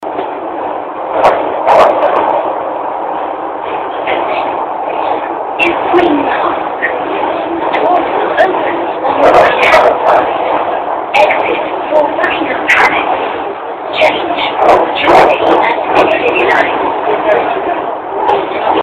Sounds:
Rail transport, underground, Vehicle

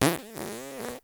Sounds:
Fart

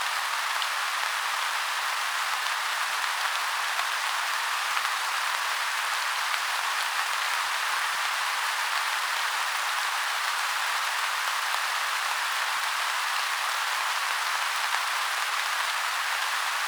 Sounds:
Rain, Water

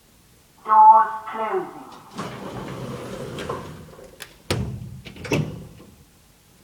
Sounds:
Sliding door, Door, Domestic sounds

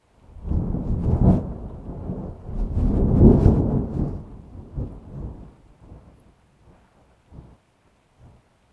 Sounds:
Thunderstorm, Thunder

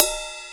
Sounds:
Music, Cymbal, Musical instrument, Crash cymbal, Percussion

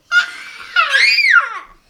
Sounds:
Human voice, Screaming

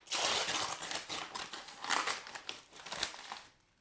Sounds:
Tearing

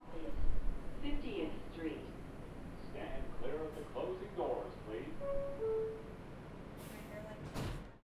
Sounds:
Subway, Rail transport, Human voice, Vehicle

